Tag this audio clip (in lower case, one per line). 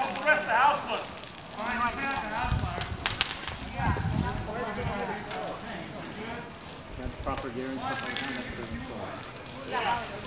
speech